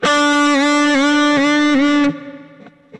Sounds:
Guitar, Musical instrument, Electric guitar, Music, Plucked string instrument

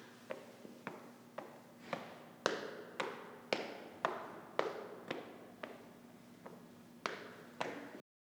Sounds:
Walk

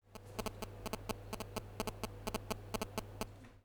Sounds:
Telephone, Alarm

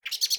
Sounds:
Bird, Wild animals, Animal

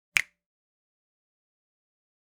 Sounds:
Hands, Finger snapping

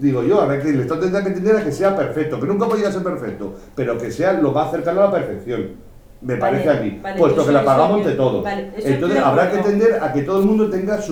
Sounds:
Conversation, Speech, Human voice

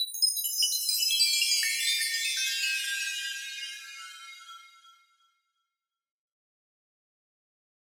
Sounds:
Bell, Chime

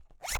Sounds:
Zipper (clothing), home sounds

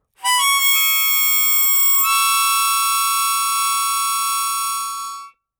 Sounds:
Harmonica, Musical instrument, Music

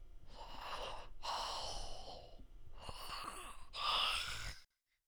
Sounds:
Respiratory sounds, Breathing

